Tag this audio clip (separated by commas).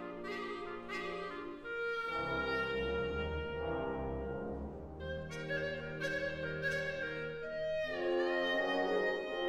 playing clarinet